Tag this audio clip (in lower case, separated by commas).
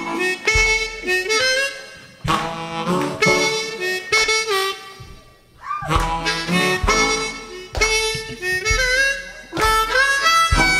playing harmonica